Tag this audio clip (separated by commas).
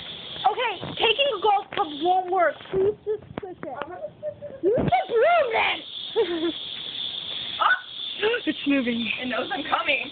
Speech